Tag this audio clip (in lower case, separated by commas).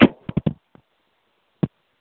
telephone, alarm